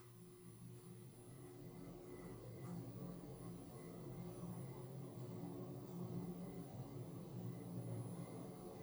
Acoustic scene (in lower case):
elevator